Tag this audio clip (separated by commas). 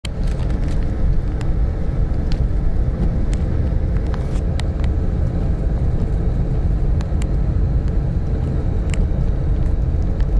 Vehicle, Car, outside, urban or man-made, Field recording